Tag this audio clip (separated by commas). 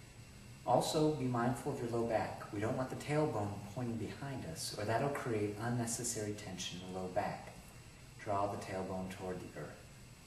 Speech